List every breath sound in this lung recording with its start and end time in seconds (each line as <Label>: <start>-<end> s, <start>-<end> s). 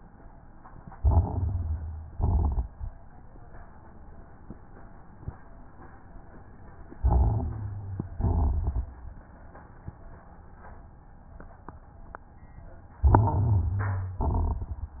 Inhalation: 0.89-2.07 s, 7.02-8.08 s, 13.07-14.04 s
Exhalation: 2.09-2.73 s, 8.12-9.02 s, 14.10-15.00 s
Crackles: 0.89-2.07 s, 2.09-2.73 s, 7.02-8.08 s, 8.12-9.02 s, 13.07-14.04 s, 14.10-15.00 s